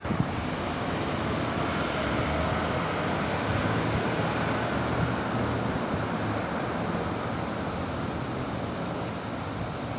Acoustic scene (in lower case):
street